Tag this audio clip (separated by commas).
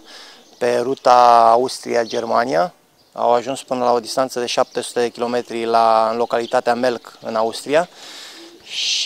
Bird, dove, Speech